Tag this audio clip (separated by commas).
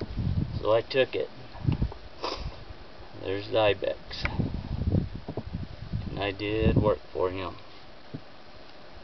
Speech